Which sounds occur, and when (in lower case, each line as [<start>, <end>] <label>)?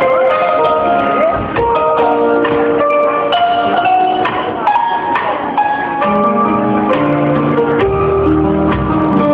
[0.00, 9.33] inside a large room or hall
[0.00, 9.33] music
[1.07, 1.44] human voice